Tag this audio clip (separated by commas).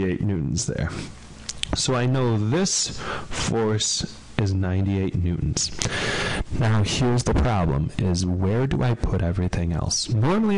Speech, Speech synthesizer